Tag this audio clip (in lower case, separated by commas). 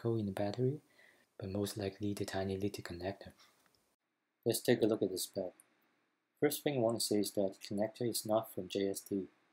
speech